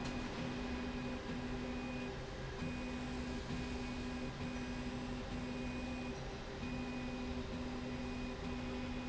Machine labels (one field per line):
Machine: slide rail